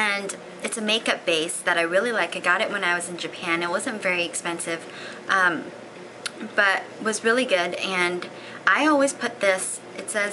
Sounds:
Speech

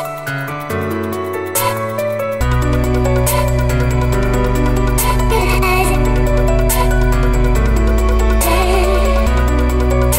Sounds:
Music, Dubstep

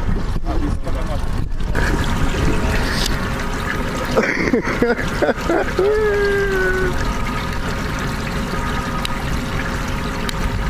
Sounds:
Speech, Vehicle, Water vehicle, speedboat

